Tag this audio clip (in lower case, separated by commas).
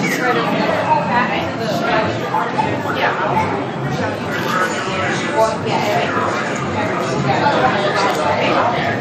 speech